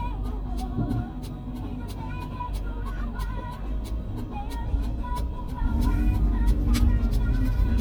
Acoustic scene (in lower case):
car